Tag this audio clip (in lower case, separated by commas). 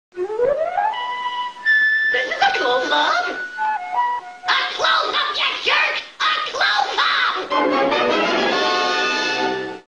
speech, music